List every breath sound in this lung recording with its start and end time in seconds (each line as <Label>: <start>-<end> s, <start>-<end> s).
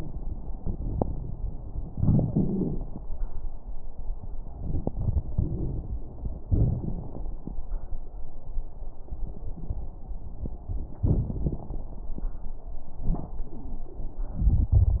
Inhalation: 4.55-6.05 s
Exhalation: 6.43-7.45 s
Crackles: 4.55-6.05 s, 6.43-7.45 s